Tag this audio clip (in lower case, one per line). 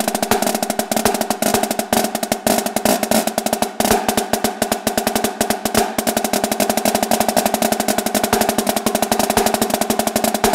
music